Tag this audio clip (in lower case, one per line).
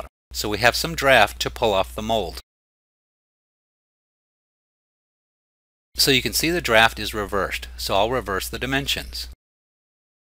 speech